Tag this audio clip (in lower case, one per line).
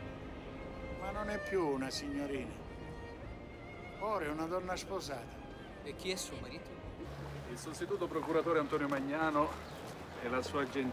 music
speech